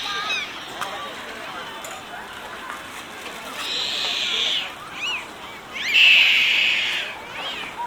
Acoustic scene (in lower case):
park